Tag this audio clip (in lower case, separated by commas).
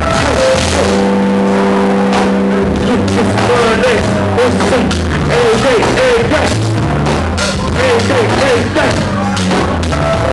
music